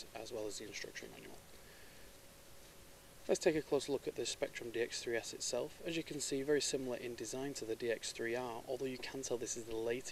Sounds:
speech

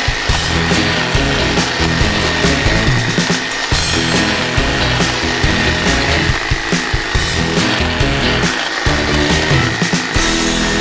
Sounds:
hedge trimmer running

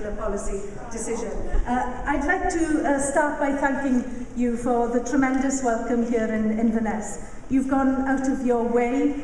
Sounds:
speech, woman speaking, monologue

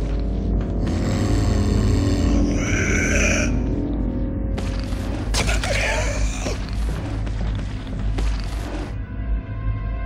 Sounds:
music

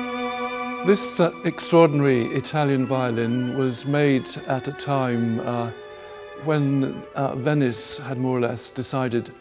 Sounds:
music, musical instrument, fiddle, speech

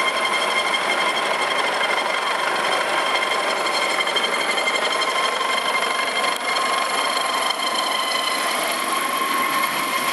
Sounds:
vehicle, helicopter

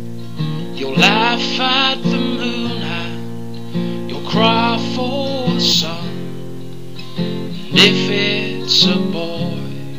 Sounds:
music

